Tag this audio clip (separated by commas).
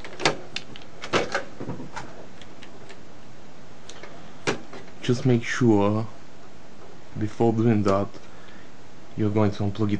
Speech, inside a small room